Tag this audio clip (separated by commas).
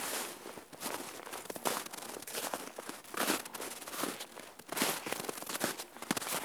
footsteps